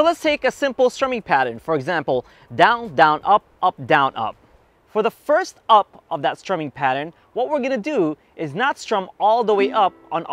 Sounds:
speech
music

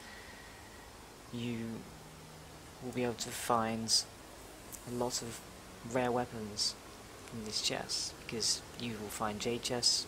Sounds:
speech

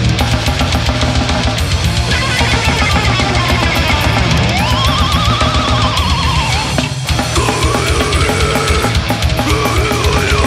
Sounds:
music

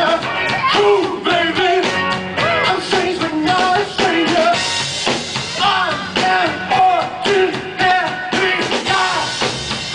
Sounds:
music

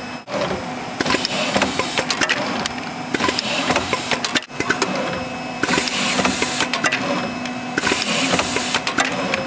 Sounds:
inside a large room or hall

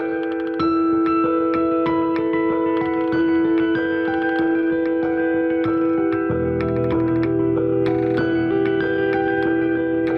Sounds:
ping
music

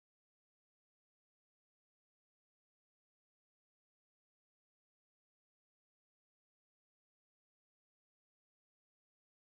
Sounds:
music

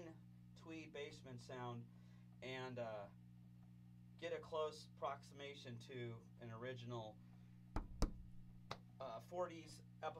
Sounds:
speech

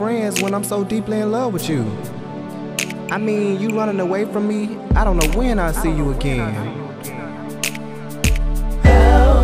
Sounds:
music
speech

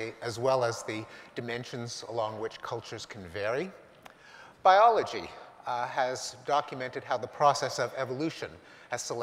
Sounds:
speech
male speech

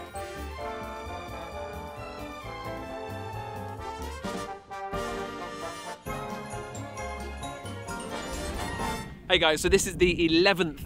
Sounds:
speech
music

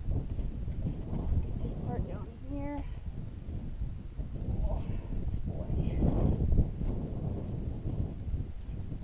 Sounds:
speech

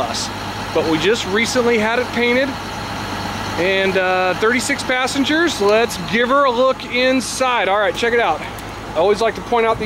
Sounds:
vehicle
speech

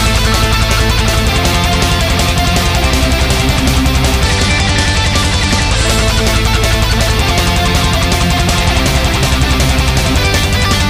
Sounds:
music

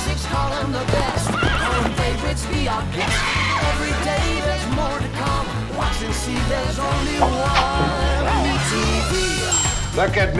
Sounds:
music
jingle (music)
speech

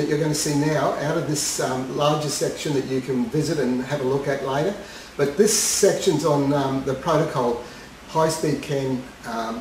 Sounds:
speech

